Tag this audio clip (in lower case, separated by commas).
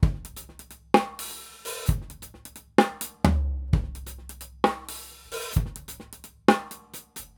musical instrument, drum kit, percussion, music